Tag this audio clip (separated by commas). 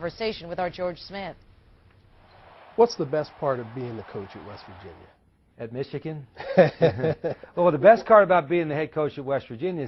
Speech